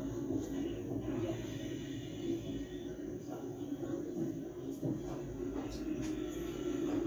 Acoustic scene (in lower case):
subway train